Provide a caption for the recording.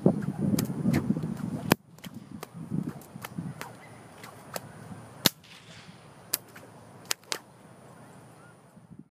A whip is being swung around and cracking